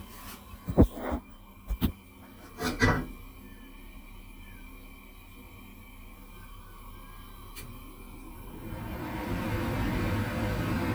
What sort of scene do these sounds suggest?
kitchen